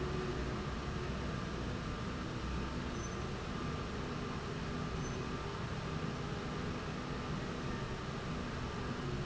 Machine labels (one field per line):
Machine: slide rail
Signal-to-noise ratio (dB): -6 dB